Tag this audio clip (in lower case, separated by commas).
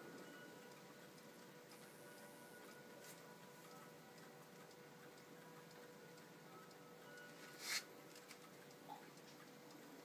tick-tock